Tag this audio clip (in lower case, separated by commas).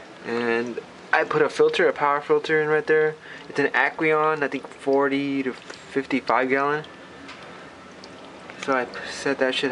speech, stream, gurgling